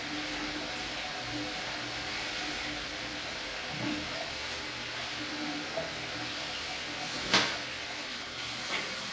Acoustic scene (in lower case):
restroom